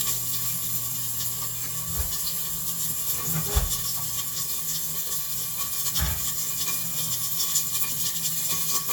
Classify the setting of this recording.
kitchen